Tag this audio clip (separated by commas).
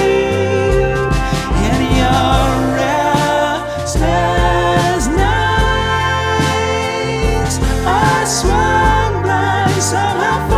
Music